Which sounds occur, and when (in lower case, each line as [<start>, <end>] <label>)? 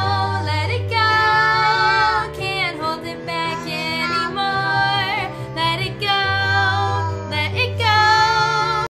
[0.00, 0.51] babbling
[0.00, 0.80] female singing
[0.00, 8.89] music
[0.94, 2.26] female singing
[1.16, 2.29] babbling
[2.41, 5.28] female singing
[3.53, 3.76] babbling
[4.05, 4.32] babbling
[4.70, 5.30] babbling
[5.28, 5.57] breathing
[5.59, 5.92] female singing
[6.02, 7.10] female singing
[6.47, 7.53] babbling
[7.32, 7.50] female singing
[7.58, 7.69] female singing
[7.82, 8.89] female singing
[7.83, 8.92] babbling